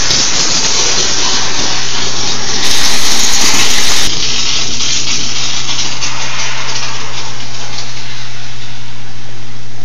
A loud banging with the constant hum of a motor running